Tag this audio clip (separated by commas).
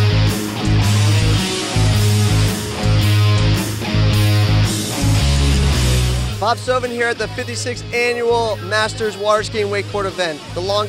Speech, Music